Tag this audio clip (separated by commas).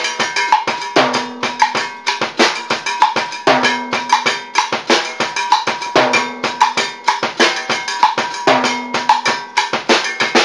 playing timbales